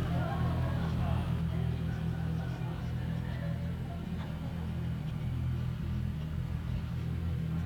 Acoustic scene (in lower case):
residential area